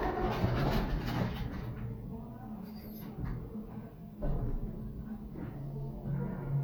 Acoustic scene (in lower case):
elevator